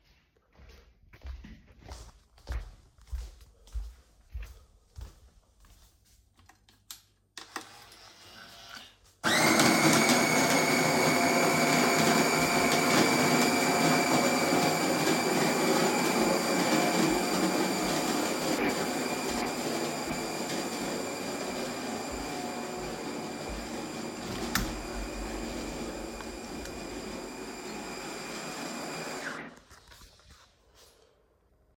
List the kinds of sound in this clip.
footsteps, coffee machine, window